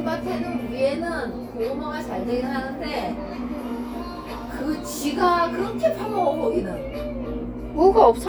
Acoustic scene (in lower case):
cafe